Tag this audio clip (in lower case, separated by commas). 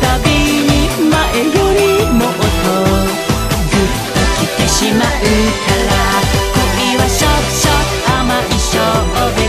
music